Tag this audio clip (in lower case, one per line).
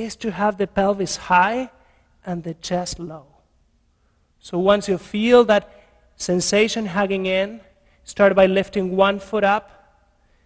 speech